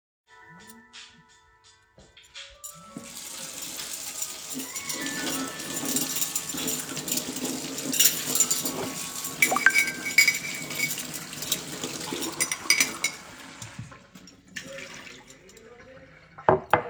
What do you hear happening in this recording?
While the phone was ringing I started washing dishes under running water. While this was all happpening I also received a notification on my phone.